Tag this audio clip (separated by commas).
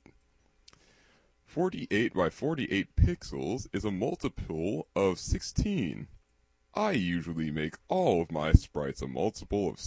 Speech